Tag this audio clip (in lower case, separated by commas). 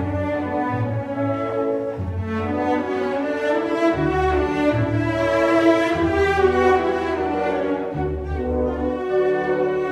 cello, classical music, musical instrument, orchestra, music